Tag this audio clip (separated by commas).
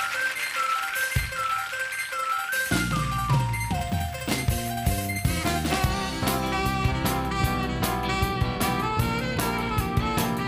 Swing music